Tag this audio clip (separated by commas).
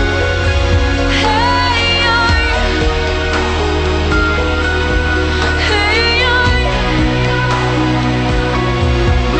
Music, Background music